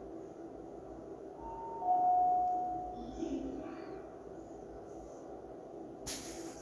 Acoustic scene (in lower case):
elevator